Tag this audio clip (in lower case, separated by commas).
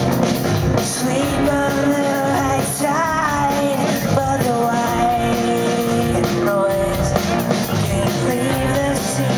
singing, rock music, music